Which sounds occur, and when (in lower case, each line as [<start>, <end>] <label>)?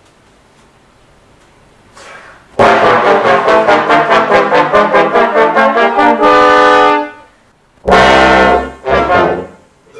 [0.00, 9.95] background noise
[0.15, 0.38] generic impact sounds
[0.54, 0.75] generic impact sounds
[1.33, 1.67] generic impact sounds
[1.91, 2.57] breathing
[2.59, 7.34] music
[7.83, 9.56] music
[9.84, 9.95] human sounds